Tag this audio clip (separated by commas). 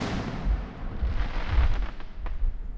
Explosion, Fireworks